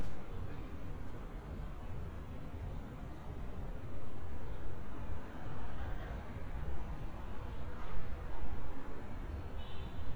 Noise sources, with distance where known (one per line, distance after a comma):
car horn, far